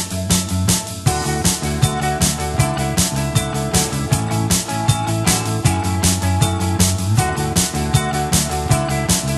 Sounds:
music

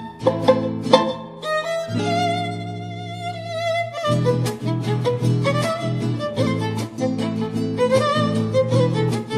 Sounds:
fiddle, musical instrument, bowed string instrument, music

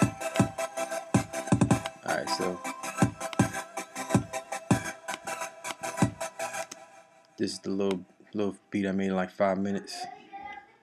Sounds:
music, speech

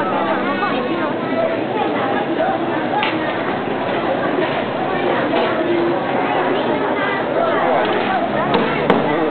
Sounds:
speech

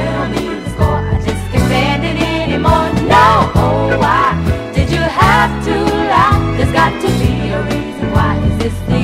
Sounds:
soul music, music

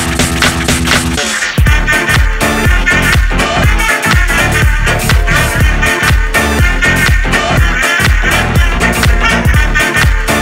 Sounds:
music, disco

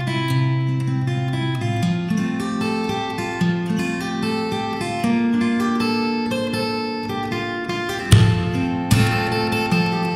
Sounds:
guitar, musical instrument, strum, music, acoustic guitar

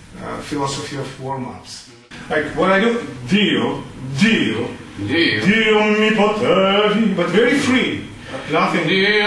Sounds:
singing, speech

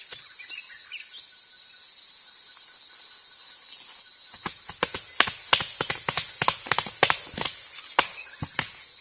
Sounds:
chimpanzee pant-hooting

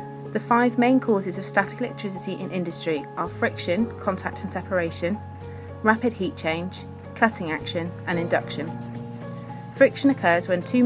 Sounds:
music, speech

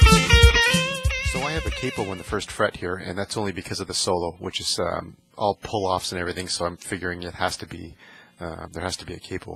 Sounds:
speech, music, guitar, plucked string instrument, musical instrument, strum

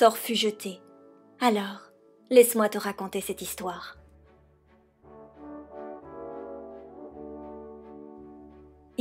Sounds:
speech, music

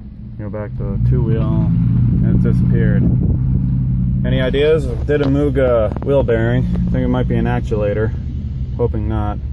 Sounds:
speech

